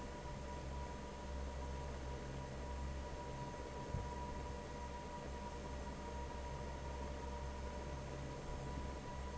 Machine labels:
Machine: fan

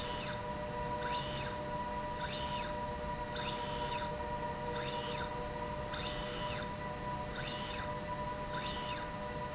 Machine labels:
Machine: slide rail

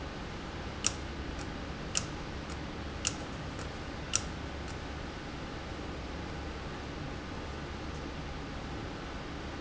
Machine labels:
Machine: valve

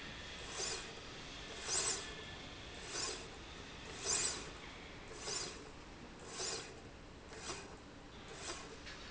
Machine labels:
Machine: slide rail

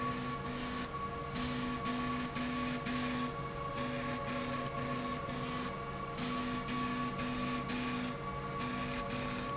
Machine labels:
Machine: slide rail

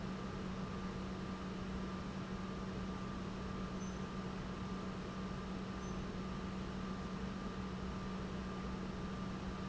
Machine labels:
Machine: pump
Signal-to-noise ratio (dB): 0 dB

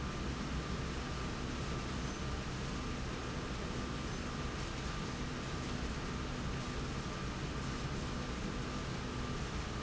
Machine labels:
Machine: slide rail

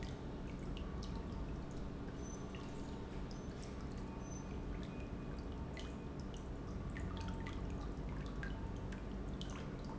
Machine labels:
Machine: pump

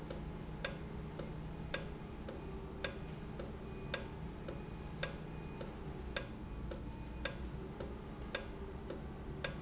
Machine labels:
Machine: valve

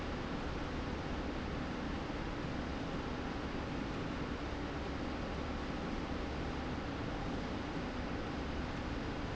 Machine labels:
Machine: slide rail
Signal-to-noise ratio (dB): -6 dB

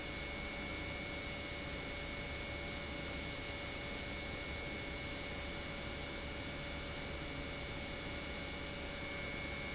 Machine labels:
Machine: pump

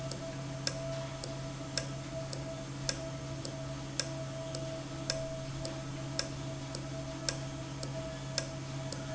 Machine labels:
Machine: valve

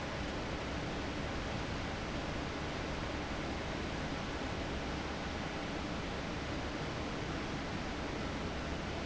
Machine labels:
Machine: fan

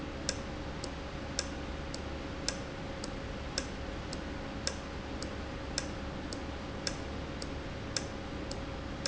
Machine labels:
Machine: valve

